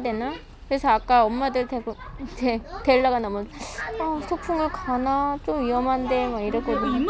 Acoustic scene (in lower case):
park